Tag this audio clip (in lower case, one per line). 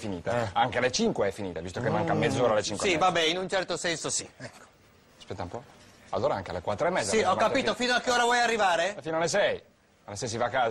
speech